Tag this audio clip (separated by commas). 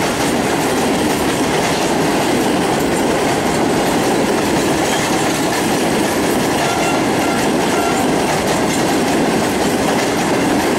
Clickety-clack, Rail transport, train wagon, Train horn, Train